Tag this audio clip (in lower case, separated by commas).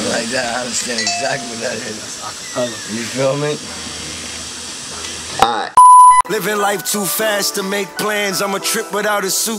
speech, inside a large room or hall, music